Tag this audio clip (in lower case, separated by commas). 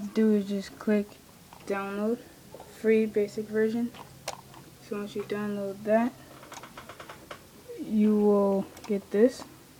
speech, inside a small room